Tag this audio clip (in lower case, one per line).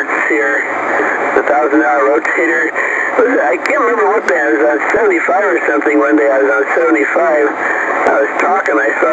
radio
speech